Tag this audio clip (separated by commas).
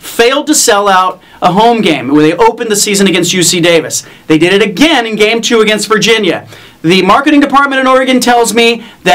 Speech